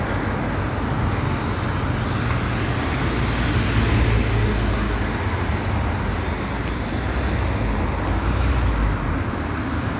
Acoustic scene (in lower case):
street